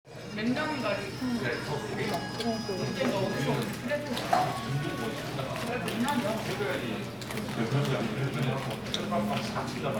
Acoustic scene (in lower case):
crowded indoor space